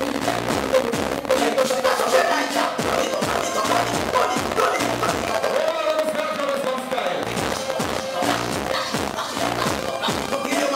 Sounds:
speech, sound effect, music

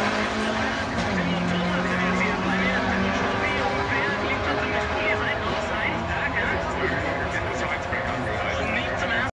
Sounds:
speech

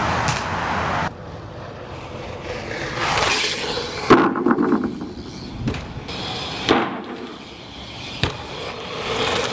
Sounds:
bicycle, vehicle, outside, urban or man-made

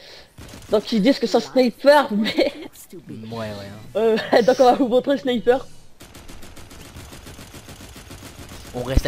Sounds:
fusillade, speech

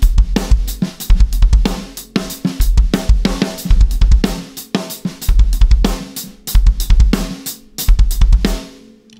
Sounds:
playing bass drum

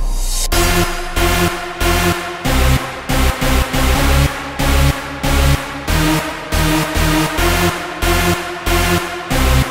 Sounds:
techno, music, electronic music

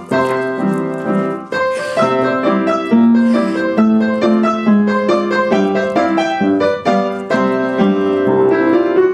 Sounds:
music

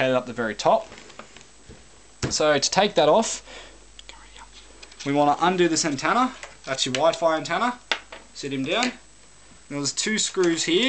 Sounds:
speech, inside a small room

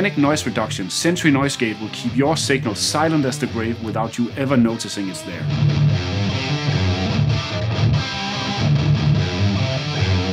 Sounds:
music, speech

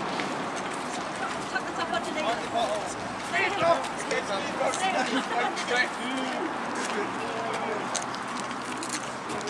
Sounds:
walk, speech

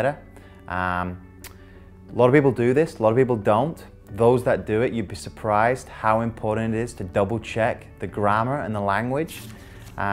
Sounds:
speech, music

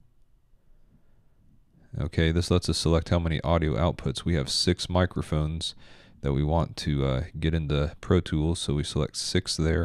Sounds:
speech

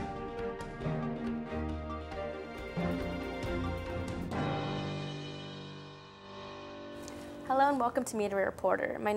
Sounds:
music, speech

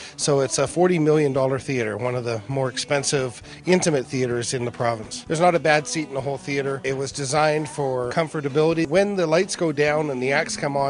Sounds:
music, speech

